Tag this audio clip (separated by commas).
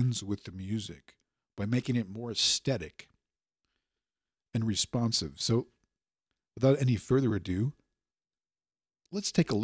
Speech